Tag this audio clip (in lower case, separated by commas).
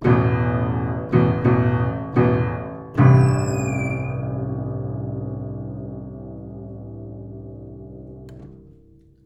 music, piano, keyboard (musical), musical instrument